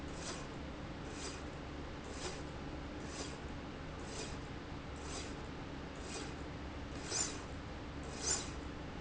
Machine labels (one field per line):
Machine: slide rail